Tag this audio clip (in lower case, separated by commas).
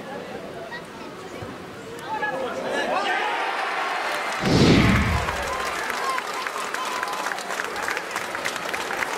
speech